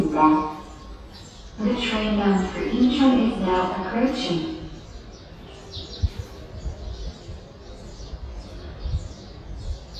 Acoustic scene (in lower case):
subway station